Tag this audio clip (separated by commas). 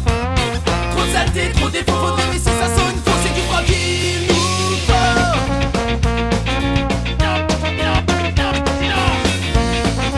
Music